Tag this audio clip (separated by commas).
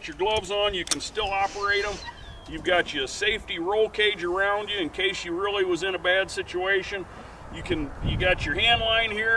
Speech